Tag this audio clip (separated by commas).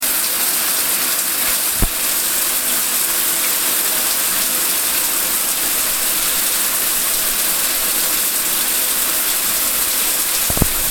Bathtub (filling or washing), home sounds